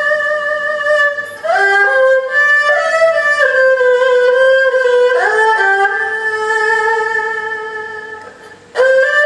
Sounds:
musical instrument, fiddle, music

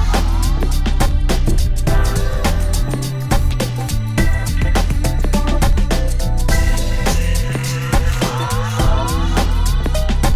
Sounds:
music

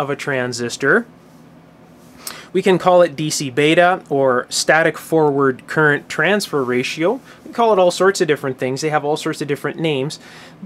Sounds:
speech

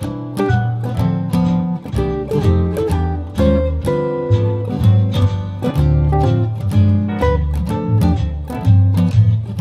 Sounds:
music, musical instrument, guitar, plucked string instrument, acoustic guitar, strum

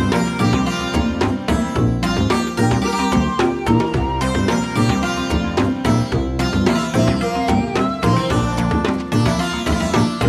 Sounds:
music

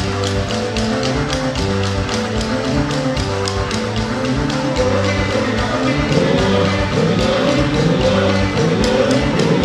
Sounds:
music, independent music

